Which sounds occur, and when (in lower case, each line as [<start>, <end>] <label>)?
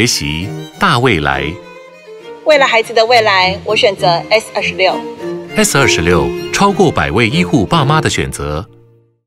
[0.03, 9.25] music
[0.03, 1.57] male speech
[2.48, 5.02] woman speaking
[5.55, 6.28] male speech
[6.52, 8.70] male speech